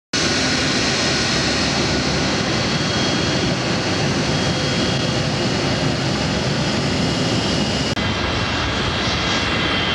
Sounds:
airplane
aircraft
vehicle

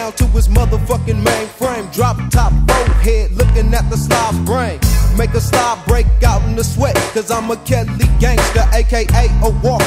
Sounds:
music

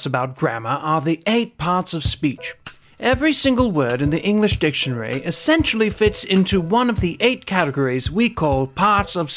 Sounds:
speech
music
man speaking
narration

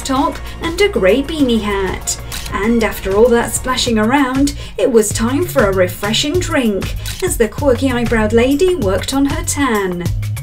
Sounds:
speech
music

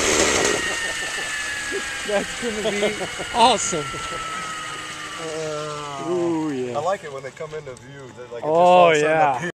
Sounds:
helicopter
speech

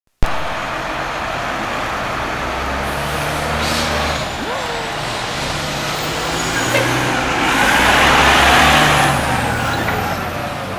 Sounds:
motor vehicle (road)
truck
vehicle

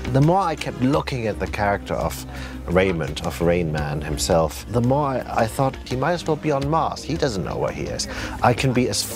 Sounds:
speech
music

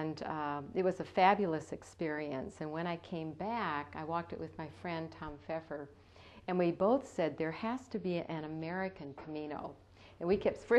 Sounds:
speech

